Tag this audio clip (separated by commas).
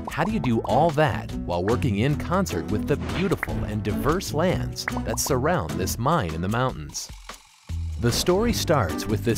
Music, Speech